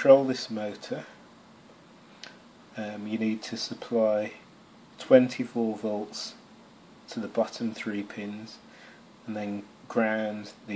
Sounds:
speech

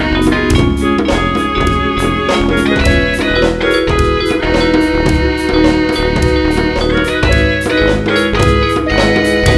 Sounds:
music, soundtrack music

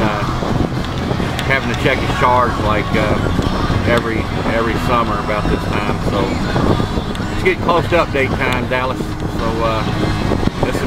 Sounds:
speech, outside, rural or natural, music

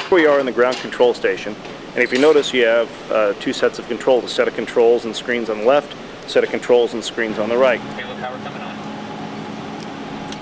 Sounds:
speech

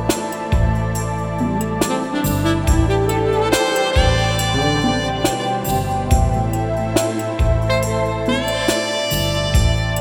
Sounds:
music

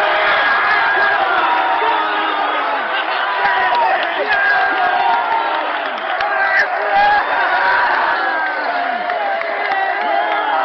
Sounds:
speech, outside, urban or man-made

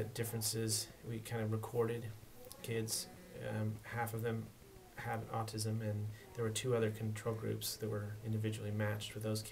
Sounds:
speech

